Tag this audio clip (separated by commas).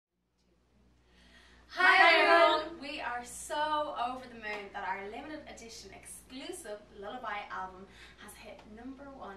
Speech, woman speaking